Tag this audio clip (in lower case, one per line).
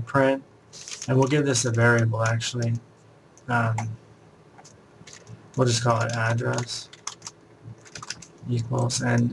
typing